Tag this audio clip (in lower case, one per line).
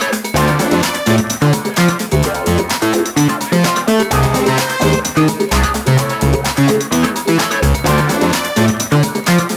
music